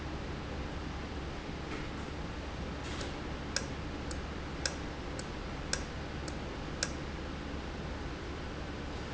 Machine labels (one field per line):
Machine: valve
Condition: normal